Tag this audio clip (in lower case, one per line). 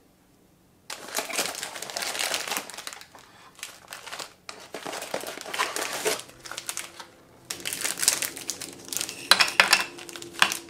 people eating crisps